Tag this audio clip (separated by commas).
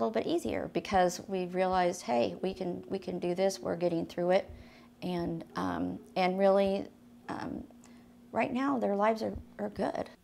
Speech